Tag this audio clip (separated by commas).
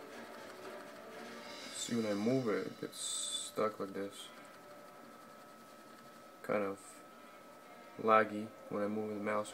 Speech